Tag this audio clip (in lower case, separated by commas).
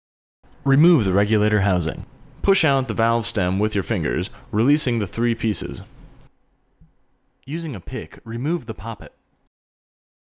speech